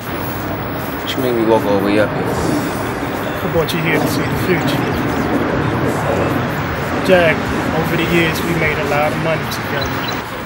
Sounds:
speech

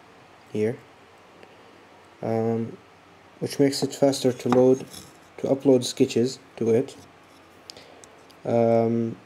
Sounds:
speech

